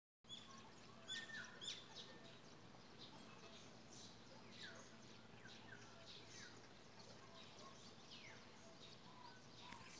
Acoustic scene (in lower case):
park